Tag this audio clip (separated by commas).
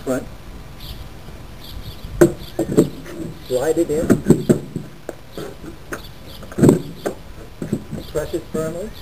Speech